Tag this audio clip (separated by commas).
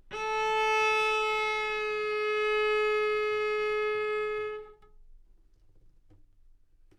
Bowed string instrument, Music, Musical instrument